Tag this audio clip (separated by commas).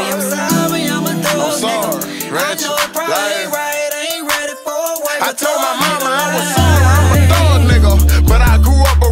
Music